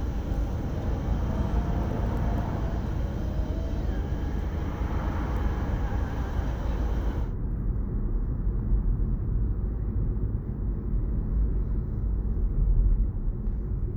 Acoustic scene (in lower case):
car